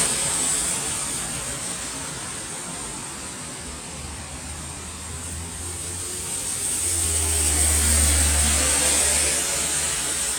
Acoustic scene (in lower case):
street